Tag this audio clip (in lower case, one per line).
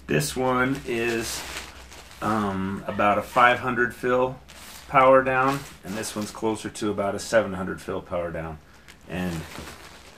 speech